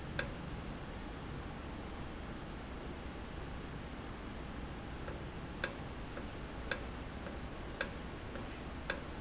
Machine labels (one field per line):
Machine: valve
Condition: normal